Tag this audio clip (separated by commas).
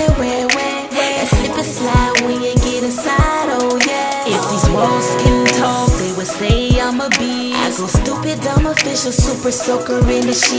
Music